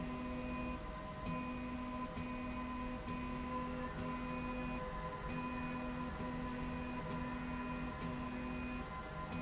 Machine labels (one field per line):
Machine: slide rail